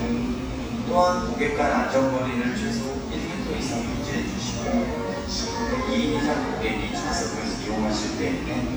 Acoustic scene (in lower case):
cafe